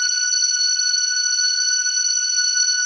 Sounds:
Organ, Keyboard (musical), Music, Musical instrument

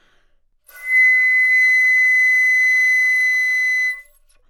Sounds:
Music, Wind instrument, Musical instrument

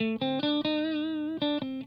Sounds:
Electric guitar, Plucked string instrument, Guitar, Musical instrument, Music

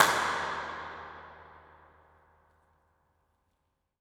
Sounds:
Clapping, Hands

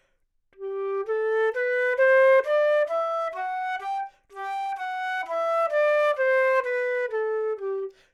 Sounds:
Music, Wind instrument, Musical instrument

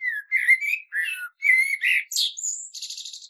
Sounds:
Wild animals, Bird, Animal

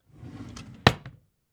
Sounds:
Domestic sounds, Wood, Drawer open or close

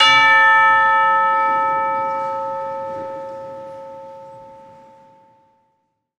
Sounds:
Music, Percussion, Church bell, Bell, Musical instrument

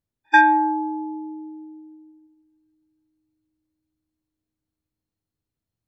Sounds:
Bell

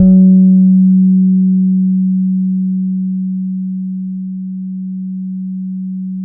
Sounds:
Guitar, Plucked string instrument, Musical instrument, Bass guitar, Music

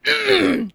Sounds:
Cough, Human voice, Respiratory sounds

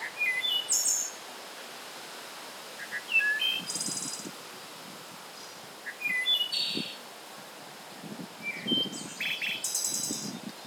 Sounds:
Chirp, Bird vocalization, Wild animals, Bird, Animal

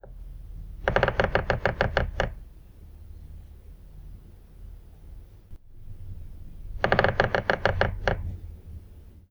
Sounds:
Animal, Wild animals, Bird

